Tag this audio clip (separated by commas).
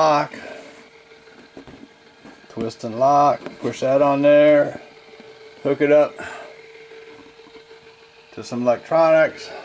Speech